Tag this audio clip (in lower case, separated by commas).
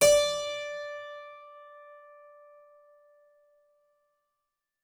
music, musical instrument, keyboard (musical)